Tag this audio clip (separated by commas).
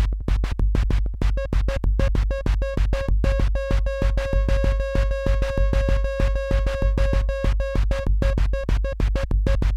Music, Musical instrument